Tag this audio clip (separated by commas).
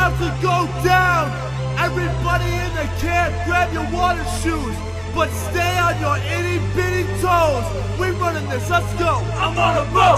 Music